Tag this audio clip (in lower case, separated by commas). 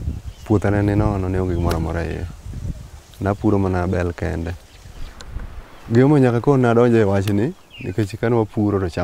speech